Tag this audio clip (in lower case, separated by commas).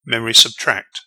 male speech, human voice, speech